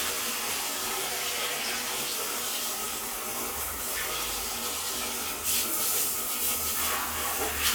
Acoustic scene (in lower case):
restroom